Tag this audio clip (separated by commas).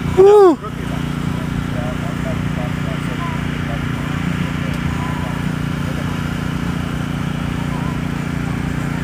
Speech